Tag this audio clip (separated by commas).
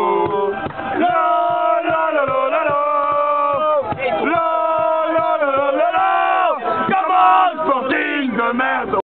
Speech